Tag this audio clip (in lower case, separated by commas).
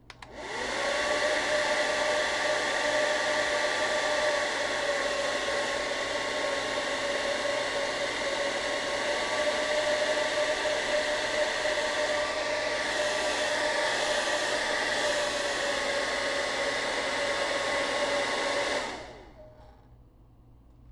domestic sounds